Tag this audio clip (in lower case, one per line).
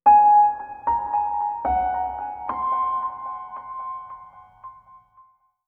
music
musical instrument
keyboard (musical)
piano